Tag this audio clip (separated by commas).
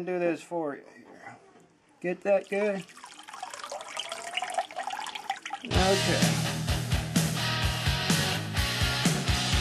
Liquid, Speech, Music